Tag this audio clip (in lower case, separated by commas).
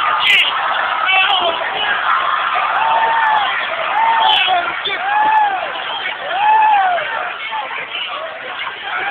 speech